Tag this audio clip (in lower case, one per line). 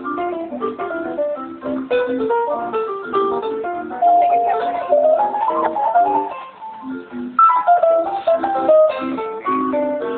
music
speech
musical instrument